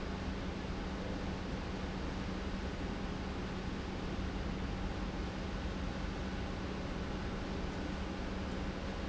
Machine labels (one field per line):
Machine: pump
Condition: normal